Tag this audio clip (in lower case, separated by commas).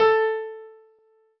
keyboard (musical), musical instrument, piano, music